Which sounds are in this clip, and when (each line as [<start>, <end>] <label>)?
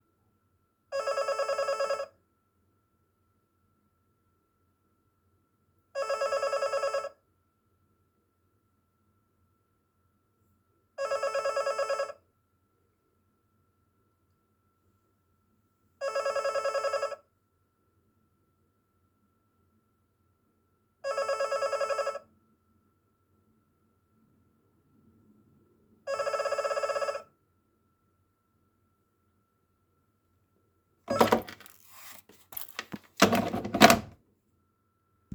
[0.86, 2.20] phone ringing
[5.81, 7.27] phone ringing
[10.80, 12.30] phone ringing
[15.96, 17.38] phone ringing
[20.95, 22.33] phone ringing
[25.98, 27.32] phone ringing
[31.06, 31.30] phone ringing
[31.29, 34.11] door